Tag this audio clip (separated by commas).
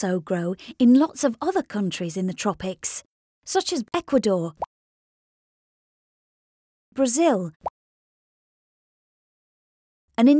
Speech, Plop